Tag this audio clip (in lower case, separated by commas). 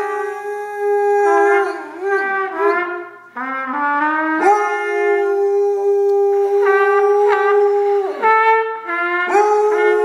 trumpet, yip, musical instrument, music, whimper (dog), bow-wow